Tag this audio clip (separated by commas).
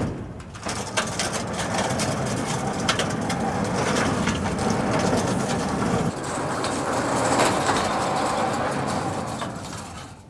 sliding door